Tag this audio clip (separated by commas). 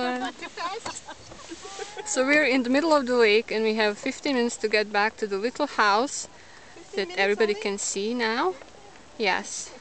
Vehicle, Boat, Rowboat, Speech